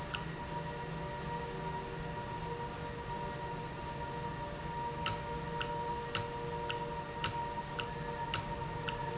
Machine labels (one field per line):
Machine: valve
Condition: normal